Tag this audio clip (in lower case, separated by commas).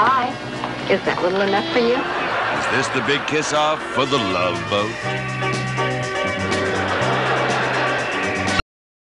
speech, music